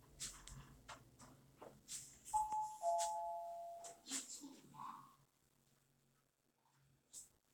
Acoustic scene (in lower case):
elevator